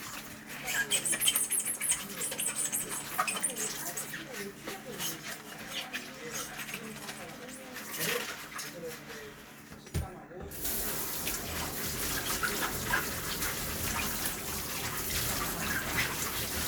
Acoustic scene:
kitchen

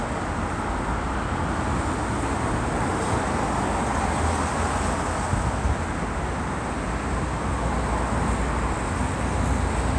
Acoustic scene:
street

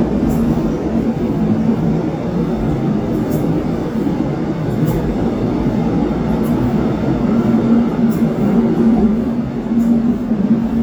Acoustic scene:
subway train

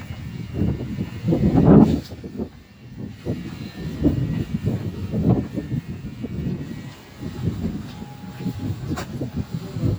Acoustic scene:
residential area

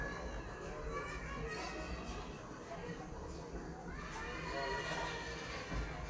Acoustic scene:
residential area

